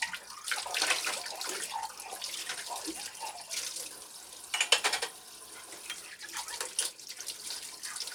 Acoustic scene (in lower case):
kitchen